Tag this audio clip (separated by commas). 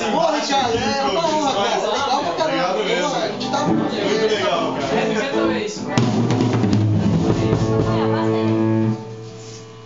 Singing, Roll, Drum, Musical instrument, Drum kit, Cymbal, Rock music, Heavy metal, Music, Speech, Guitar